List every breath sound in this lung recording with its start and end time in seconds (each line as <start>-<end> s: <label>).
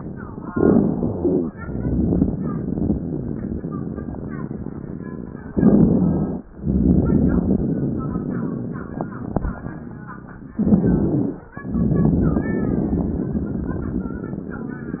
0.50-1.51 s: inhalation
0.52-1.53 s: wheeze
1.53-5.00 s: exhalation
5.53-6.45 s: wheeze
5.55-6.43 s: inhalation
6.56-10.03 s: exhalation
10.54-11.43 s: wheeze
10.61-11.49 s: inhalation